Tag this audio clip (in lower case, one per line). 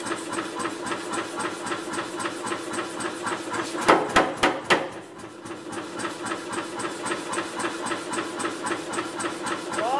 hammer